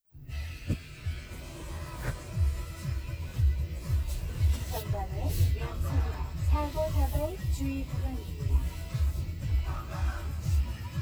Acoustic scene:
car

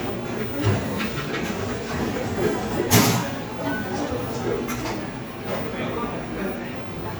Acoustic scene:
cafe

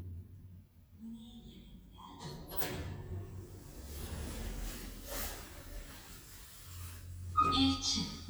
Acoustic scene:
elevator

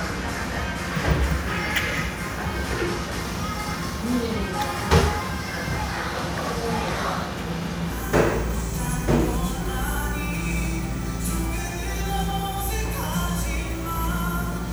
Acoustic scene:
cafe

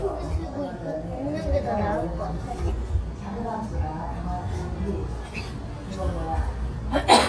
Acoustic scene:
restaurant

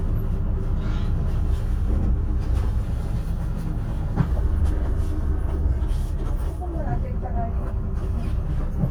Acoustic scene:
bus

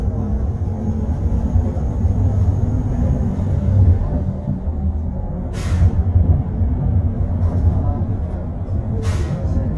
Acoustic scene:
bus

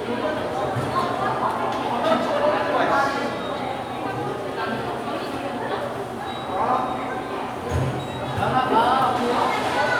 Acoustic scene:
subway station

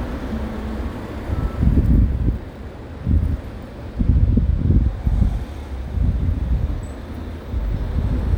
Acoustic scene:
street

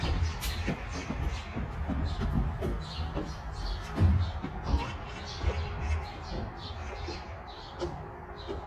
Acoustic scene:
park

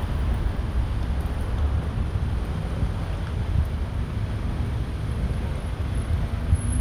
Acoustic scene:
street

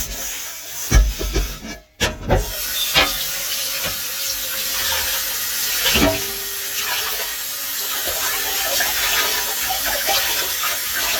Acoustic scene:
kitchen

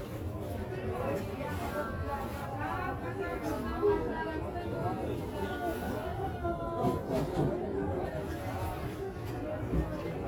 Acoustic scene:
crowded indoor space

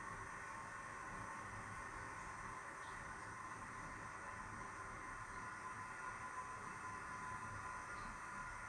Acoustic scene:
restroom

